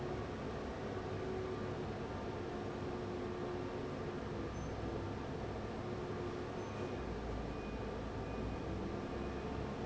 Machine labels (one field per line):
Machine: fan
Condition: abnormal